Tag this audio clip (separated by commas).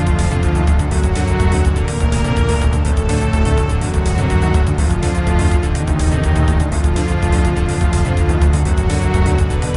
Video game music, Music